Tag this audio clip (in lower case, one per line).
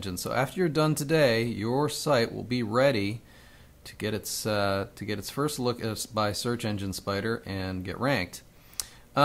speech